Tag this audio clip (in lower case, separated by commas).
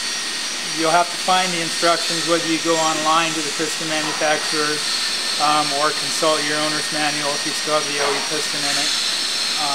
inside a large room or hall, speech